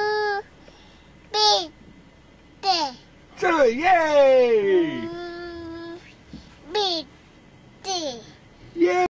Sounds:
Speech

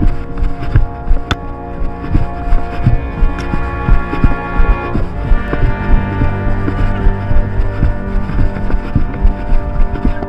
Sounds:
Run, Music

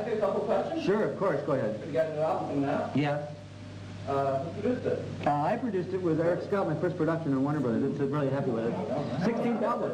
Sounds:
Zipper (clothing), Speech

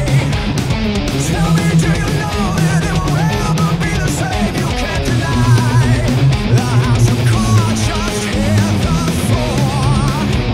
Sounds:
Music, Strum, Guitar, Plucked string instrument, Musical instrument

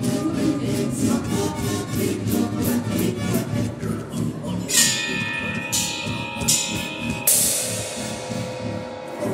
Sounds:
Percussion

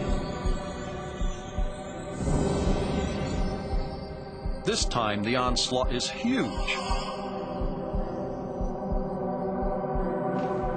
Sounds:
Music, Speech

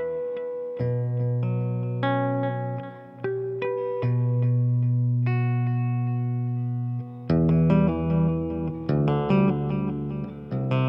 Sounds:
Music

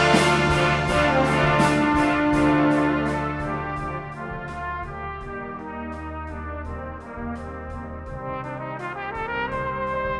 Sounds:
playing cornet

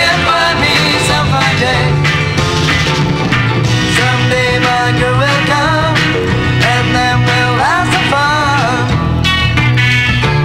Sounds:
Music

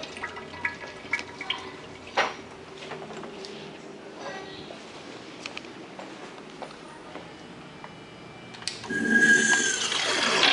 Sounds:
Water, Toilet flush

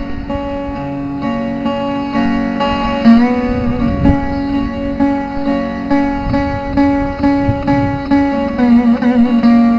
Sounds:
Music, Guitar

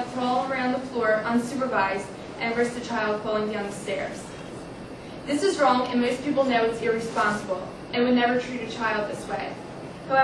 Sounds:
woman speaking, monologue, Speech

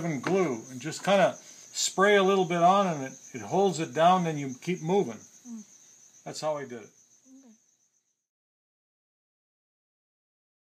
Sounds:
Speech

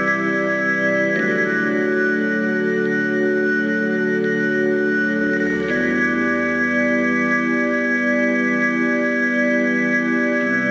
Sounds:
Music, outside, rural or natural

